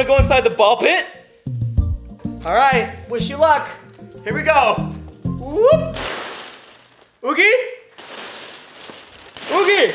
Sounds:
bouncing on trampoline

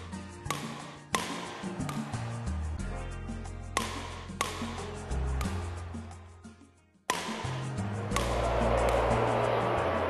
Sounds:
playing badminton

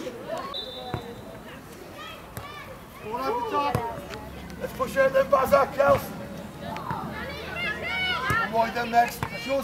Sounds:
Speech

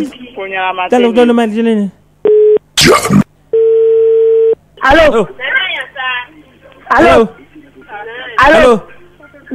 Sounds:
Speech

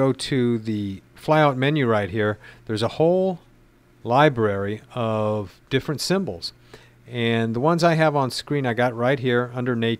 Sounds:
Speech

